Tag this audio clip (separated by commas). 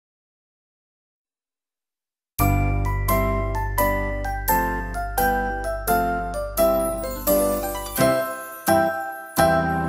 playing piano, Musical instrument, Music, Keyboard (musical), Piano, Electric piano